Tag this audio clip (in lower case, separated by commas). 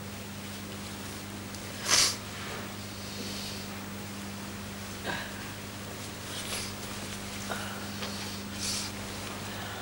people nose blowing